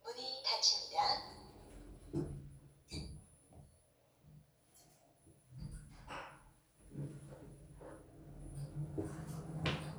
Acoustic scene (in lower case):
elevator